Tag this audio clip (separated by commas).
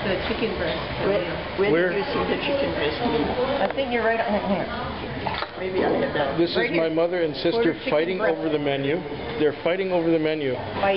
Speech